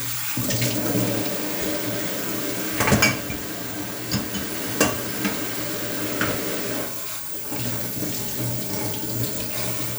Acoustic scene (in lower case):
kitchen